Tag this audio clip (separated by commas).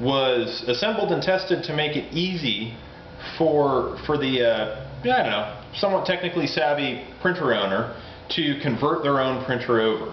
Speech